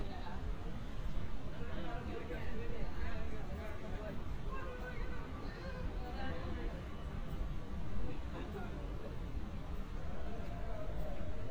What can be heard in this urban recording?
person or small group talking